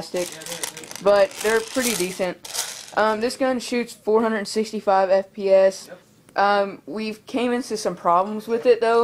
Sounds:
Speech

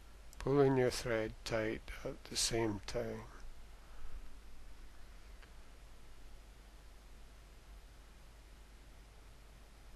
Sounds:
Speech

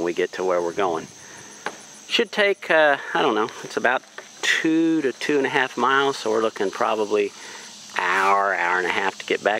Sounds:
Speech

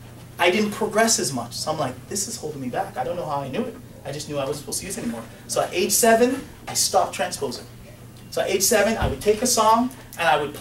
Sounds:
Keyboard (musical), inside a large room or hall, Speech, Piano, Music

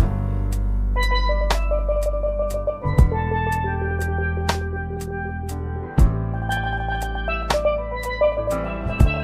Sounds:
Music

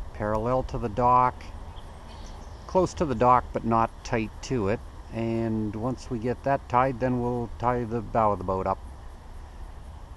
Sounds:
Speech

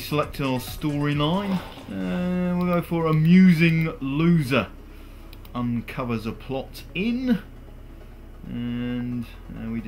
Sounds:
Speech, Music

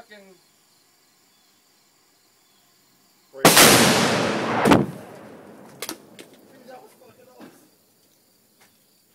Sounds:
Explosion, Speech

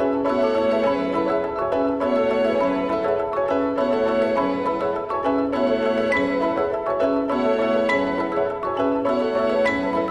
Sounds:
Music

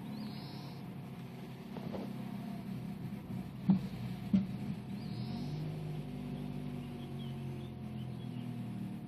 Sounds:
Car

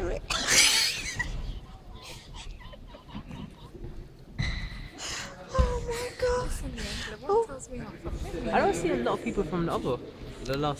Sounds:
Speech, inside a large room or hall

